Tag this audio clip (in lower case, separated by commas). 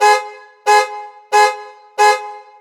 motor vehicle (road), vehicle, alarm, car